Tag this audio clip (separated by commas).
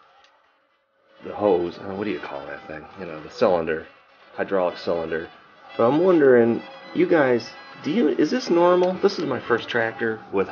Speech, Music